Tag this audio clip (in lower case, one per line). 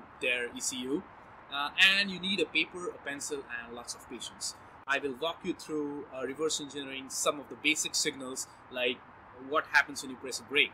speech